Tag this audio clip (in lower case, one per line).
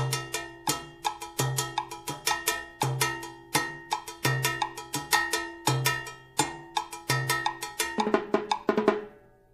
playing timbales